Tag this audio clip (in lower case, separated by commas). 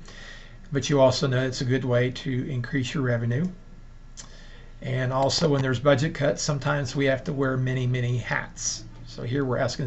speech, monologue